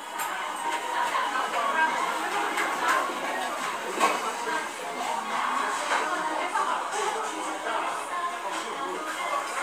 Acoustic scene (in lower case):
restaurant